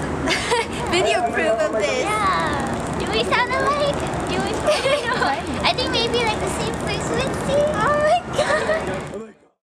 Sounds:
Speech

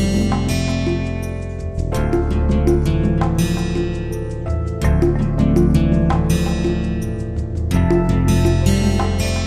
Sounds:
Music

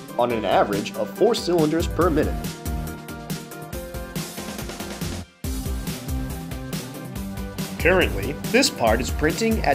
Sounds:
Speech, Music

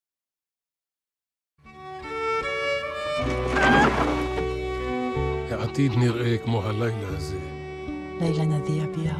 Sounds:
Music, Speech, Violin

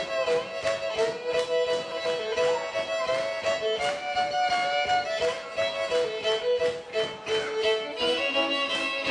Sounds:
Violin, Musical instrument, Music

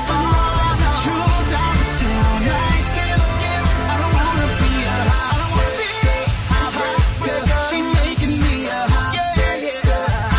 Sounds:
Rhythm and blues, Music

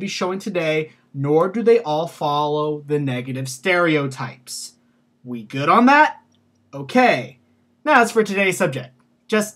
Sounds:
Speech

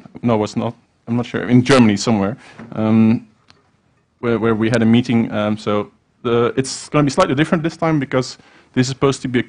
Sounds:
Speech

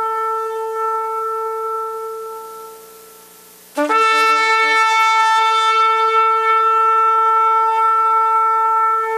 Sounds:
playing shofar

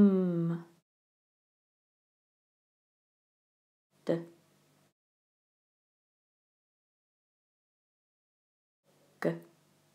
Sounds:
Speech

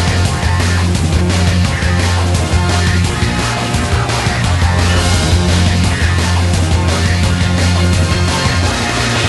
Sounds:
Music, Exciting music

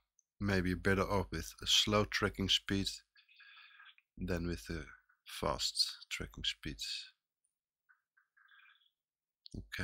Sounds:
Speech, inside a small room

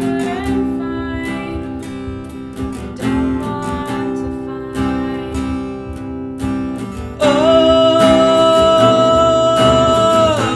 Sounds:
Plucked string instrument, Musical instrument, Singing, Guitar, Strum, Music

